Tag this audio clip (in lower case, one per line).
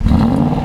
car
vehicle
motor vehicle (road)
engine